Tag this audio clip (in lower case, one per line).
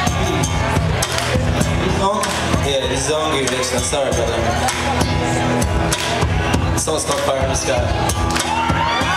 music
speech